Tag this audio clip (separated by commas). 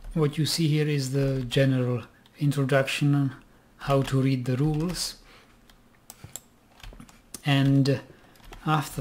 Typing, Computer keyboard